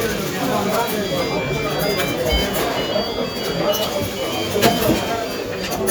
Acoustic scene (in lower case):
cafe